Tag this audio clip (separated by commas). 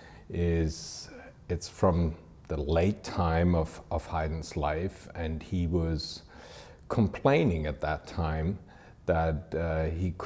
Speech